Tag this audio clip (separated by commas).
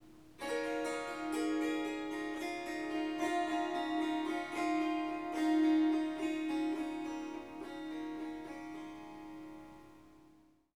Musical instrument, Music, Harp